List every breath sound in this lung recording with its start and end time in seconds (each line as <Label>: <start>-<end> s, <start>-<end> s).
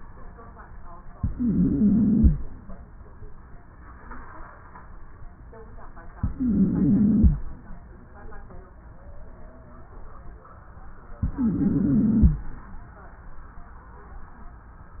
Inhalation: 1.15-2.34 s, 6.18-7.37 s, 11.20-12.38 s
Wheeze: 1.15-2.34 s, 6.18-7.37 s, 11.20-12.38 s